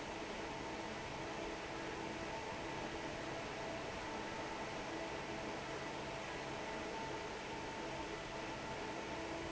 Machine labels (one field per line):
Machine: fan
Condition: normal